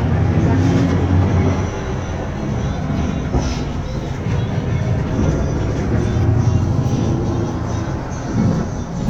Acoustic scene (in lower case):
bus